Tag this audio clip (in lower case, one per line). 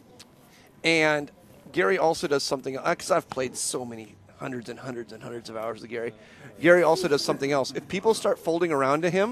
speech